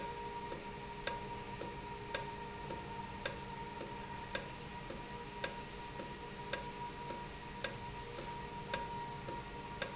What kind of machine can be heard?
valve